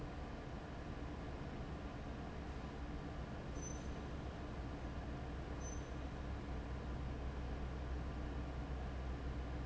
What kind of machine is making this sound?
fan